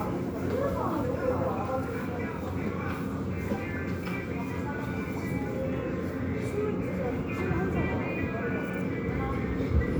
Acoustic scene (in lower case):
subway station